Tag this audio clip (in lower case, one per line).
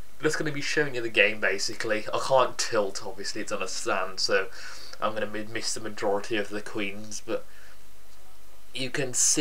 speech